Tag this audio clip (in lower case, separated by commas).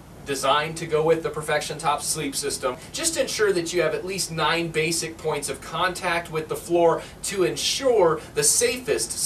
speech